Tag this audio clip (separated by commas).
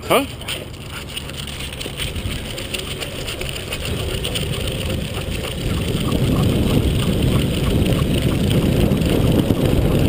Vehicle, Bicycle